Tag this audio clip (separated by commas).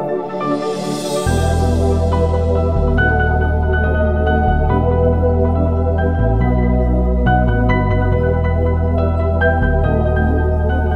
Music